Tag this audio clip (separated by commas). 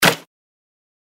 Hands, Clapping